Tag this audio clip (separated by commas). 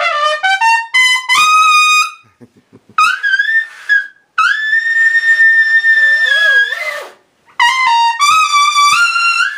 playing trumpet, Trumpet, Brass instrument